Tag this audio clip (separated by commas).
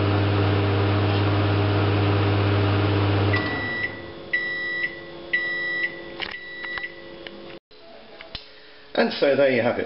Microwave oven, Speech